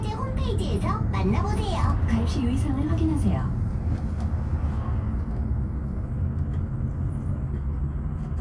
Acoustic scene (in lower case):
bus